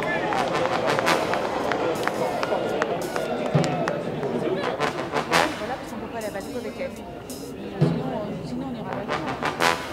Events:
0.0s-9.9s: hubbub
0.0s-9.9s: music
0.3s-0.4s: clapping
0.6s-0.7s: clapping
0.9s-1.0s: clapping
1.3s-1.4s: clapping
1.7s-1.8s: clapping
2.0s-2.1s: clapping
2.3s-2.4s: clapping
2.8s-2.9s: clapping
3.1s-3.2s: clapping
3.4s-3.7s: clapping
3.8s-3.9s: clapping
4.1s-4.3s: clapping

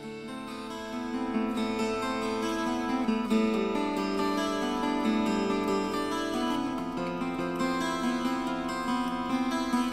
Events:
0.0s-9.9s: music

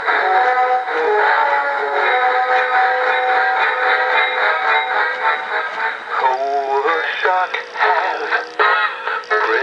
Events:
0.0s-9.6s: music
9.2s-9.6s: mechanisms

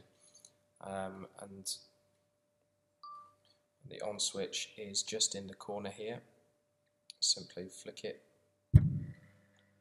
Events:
0.0s-9.8s: mechanisms
0.1s-0.5s: generic impact sounds
0.8s-1.9s: male speech
2.1s-2.2s: tick
2.6s-2.6s: tick
3.0s-3.4s: bleep
3.4s-3.6s: human sounds
3.8s-6.2s: male speech
4.0s-4.0s: tick
6.6s-6.7s: tick
6.8s-6.9s: tick
7.1s-7.2s: generic impact sounds
7.2s-8.1s: male speech
8.7s-9.2s: generic impact sounds
9.1s-9.2s: tick
9.5s-9.6s: tick

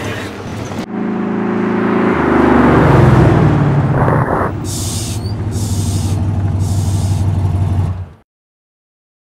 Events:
0.0s-0.4s: generic impact sounds
0.0s-8.2s: motor vehicle (road)
1.3s-3.9s: vroom
3.9s-4.5s: air brake
4.1s-4.1s: tick
4.6s-5.2s: air brake
5.1s-5.3s: squeal
5.4s-6.1s: air brake
6.3s-6.4s: tick
6.5s-7.2s: air brake

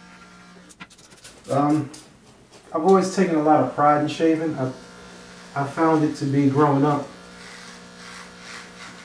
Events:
0.0s-0.6s: electric shaver
0.0s-9.0s: mechanisms
0.6s-2.6s: generic impact sounds
1.4s-1.8s: male speech
2.7s-4.7s: male speech
2.8s-3.0s: generic impact sounds
3.9s-9.0s: electric shaver
5.5s-7.1s: male speech
7.3s-9.0s: surface contact

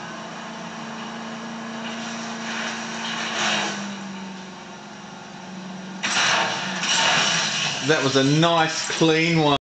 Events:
0.0s-9.6s: mechanisms
0.0s-9.6s: car
1.8s-2.2s: generic impact sounds
2.4s-2.8s: generic impact sounds
6.0s-6.5s: breaking
6.8s-7.8s: breaking
7.8s-8.8s: male speech
8.9s-9.6s: male speech

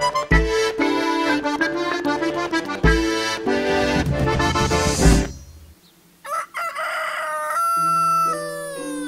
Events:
0.0s-5.2s: music
5.2s-9.0s: background noise
5.4s-6.0s: bird song
6.2s-9.0s: crowing
7.7s-9.0s: music

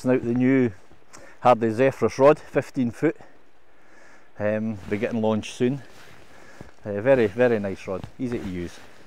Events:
0.0s-0.7s: man speaking
0.0s-9.0s: background noise
0.7s-1.4s: breathing
1.4s-3.1s: man speaking
3.1s-3.5s: breathing
3.7s-4.3s: breathing
4.4s-5.8s: man speaking
5.7s-6.7s: breathing
6.8s-8.7s: man speaking
8.2s-8.9s: generic impact sounds

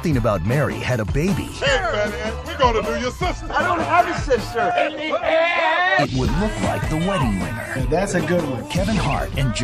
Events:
0.0s-2.2s: man speaking
0.0s-4.7s: music
1.6s-5.1s: conversation
2.4s-3.3s: man speaking
3.5s-5.2s: man speaking
5.1s-6.0s: shout
5.9s-8.6s: man speaking
6.0s-9.6s: music
6.0s-6.6s: sound effect
6.6s-7.0s: generic impact sounds
7.0s-7.3s: shout
8.7s-9.2s: sound effect
8.7s-9.2s: man speaking
9.4s-9.6s: man speaking

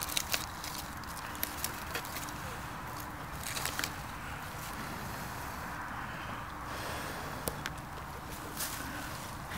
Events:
0.0s-9.5s: fire
0.0s-9.5s: wind
0.0s-2.3s: generic impact sounds
0.1s-0.2s: tick
0.3s-0.4s: tick
1.6s-1.7s: tick
1.9s-2.0s: tick
2.3s-2.8s: breathing
3.0s-3.0s: tick
3.3s-3.9s: generic impact sounds
3.8s-3.9s: tick
4.4s-4.7s: generic impact sounds
4.7s-5.8s: breathing
6.0s-6.5s: breathing
6.7s-7.4s: breathing
7.4s-7.5s: tick
7.6s-7.7s: tick
7.8s-7.8s: tick
7.9s-8.0s: tick
8.3s-8.4s: tick
8.5s-8.9s: generic impact sounds
8.9s-9.3s: breathing
9.5s-9.5s: breathing

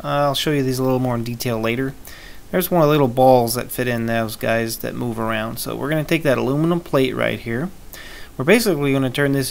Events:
0.0s-1.9s: male speech
0.0s-9.5s: background noise
2.0s-2.3s: breathing
2.5s-7.7s: male speech
7.9s-8.3s: breathing
8.3s-9.5s: male speech

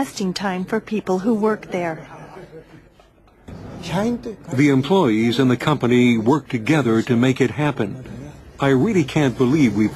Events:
0.0s-2.0s: female speech
0.0s-2.8s: hubbub
0.0s-9.9s: mechanisms
2.1s-3.3s: giggle
3.8s-4.4s: man speaking
4.5s-8.3s: man speaking
8.6s-9.9s: man speaking

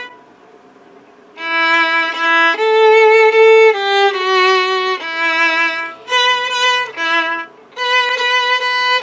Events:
0.0s-0.3s: music
0.0s-9.0s: mechanisms
1.3s-7.5s: music
7.7s-9.0s: music

